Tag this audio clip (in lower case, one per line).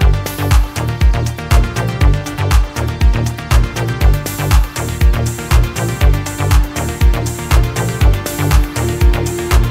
music